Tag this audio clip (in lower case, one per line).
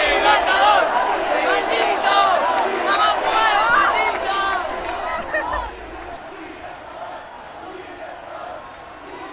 speech
crowd